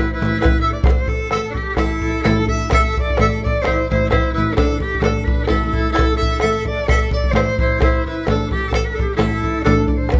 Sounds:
music

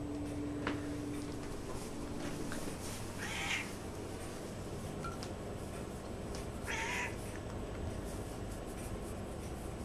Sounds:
cat
meow
pets

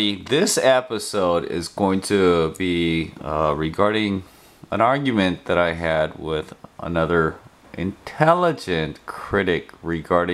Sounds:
speech

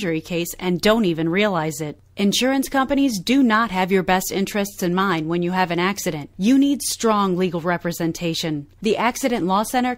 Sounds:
speech

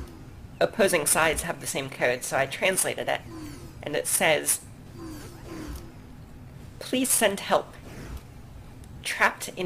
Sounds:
speech

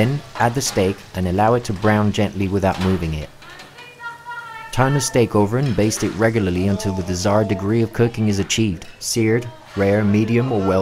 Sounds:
speech
frying (food)

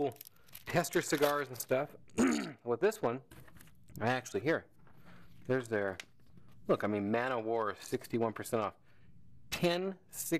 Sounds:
speech

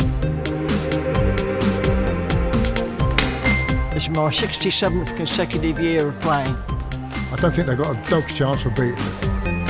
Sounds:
music
speech
ping

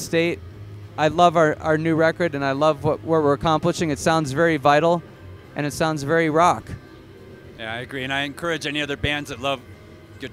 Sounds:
speech

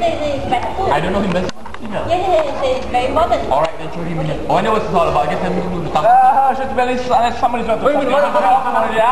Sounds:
speech

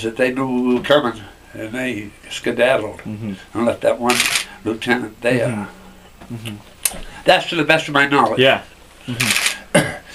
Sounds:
speech

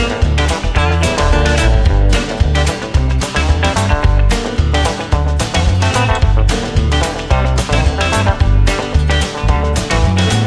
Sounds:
double bass
music

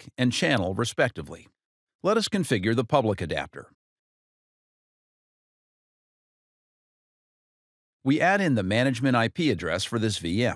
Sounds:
speech

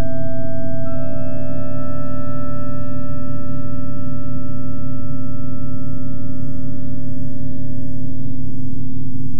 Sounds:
sound effect
music

